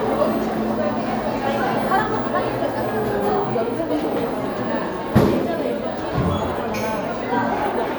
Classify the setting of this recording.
cafe